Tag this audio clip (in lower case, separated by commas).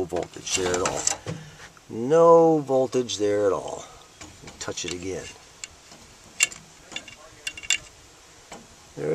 speech